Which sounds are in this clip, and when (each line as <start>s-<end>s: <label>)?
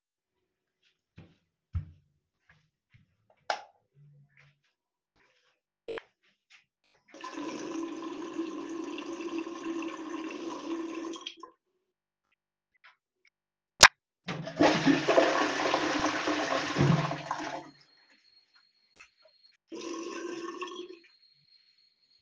0.7s-3.0s: footsteps
3.5s-3.8s: light switch
7.1s-11.6s: running water
14.2s-17.8s: toilet flushing
19.7s-21.1s: running water